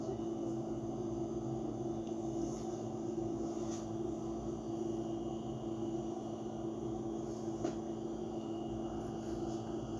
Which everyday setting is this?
bus